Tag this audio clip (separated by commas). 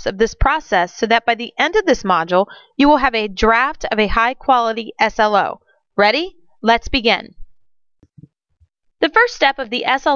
Speech